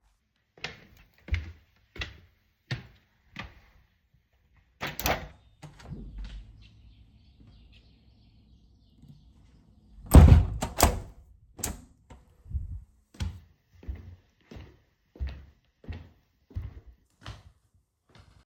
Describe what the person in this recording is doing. I walked to the window and opened it. Wind and birds could be heard from outside. Then I closed the window and walked away.